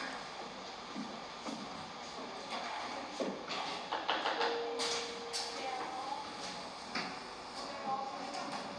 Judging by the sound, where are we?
in a cafe